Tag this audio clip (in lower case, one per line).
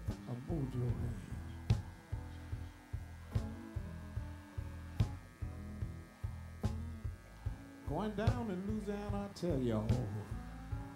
speech
music
guitar
musical instrument